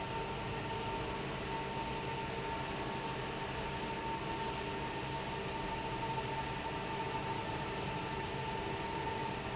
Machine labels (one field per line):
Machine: fan